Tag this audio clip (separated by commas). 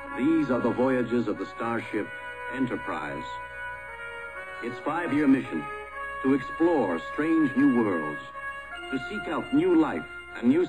Music, Theme music, Speech